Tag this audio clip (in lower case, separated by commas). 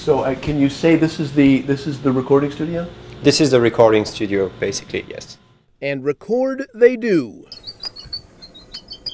cricket, insect